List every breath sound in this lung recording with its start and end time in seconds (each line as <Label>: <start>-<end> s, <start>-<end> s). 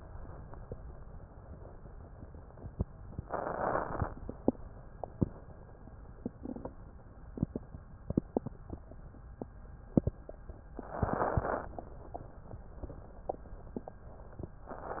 Inhalation: 3.30-4.12 s, 10.87-11.69 s
Crackles: 3.30-4.12 s, 10.87-11.69 s